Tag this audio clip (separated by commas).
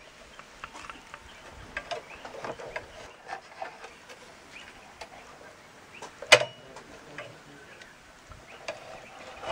Animal